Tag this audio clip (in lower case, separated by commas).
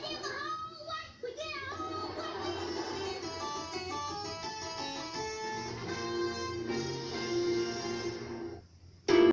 speech, music, television